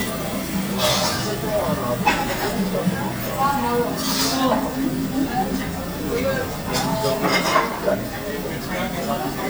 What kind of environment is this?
restaurant